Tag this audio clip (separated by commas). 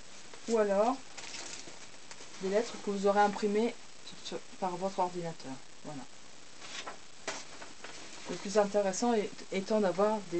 Speech